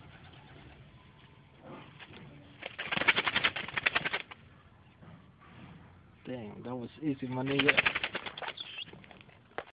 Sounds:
animal
pigeon
speech
outside, rural or natural

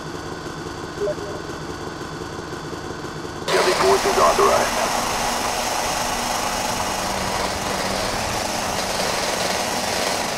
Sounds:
car
speech

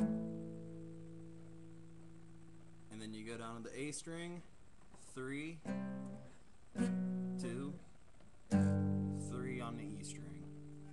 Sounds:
music
plucked string instrument
musical instrument
strum
guitar
speech

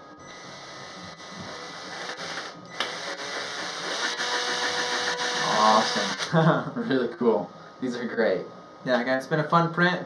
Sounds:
tools
power tool

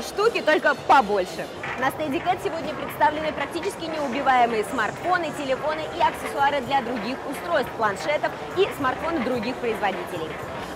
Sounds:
speech

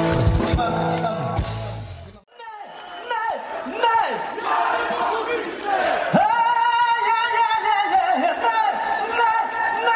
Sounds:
speech
music

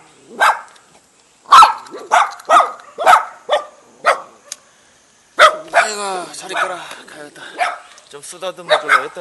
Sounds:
animal
bow-wow
pets
speech
dog

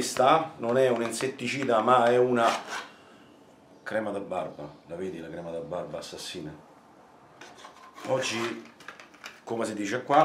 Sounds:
speech

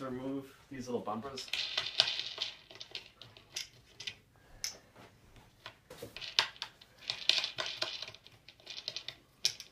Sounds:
speech

